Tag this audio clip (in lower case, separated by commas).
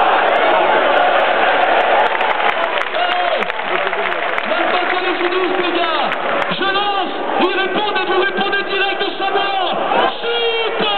speech